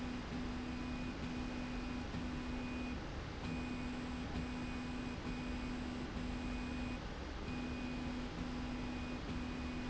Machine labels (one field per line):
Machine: slide rail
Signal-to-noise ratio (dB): 0 dB